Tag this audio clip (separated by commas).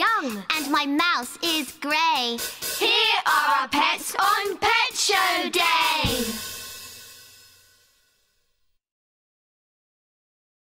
Music